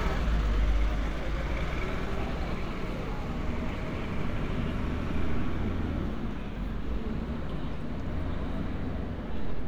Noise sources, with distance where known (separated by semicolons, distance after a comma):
large-sounding engine, near